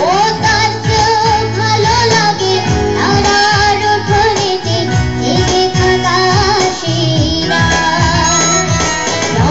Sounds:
music, child singing

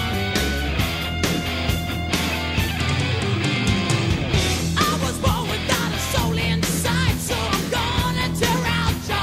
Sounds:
music

